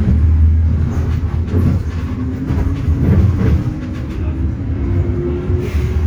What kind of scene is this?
bus